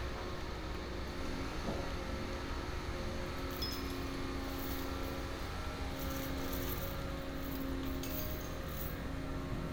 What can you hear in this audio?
unidentified powered saw